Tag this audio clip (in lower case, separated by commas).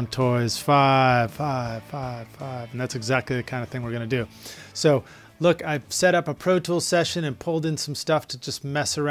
speech, music